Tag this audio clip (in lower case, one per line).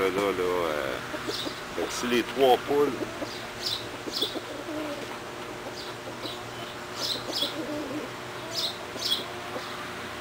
speech
bird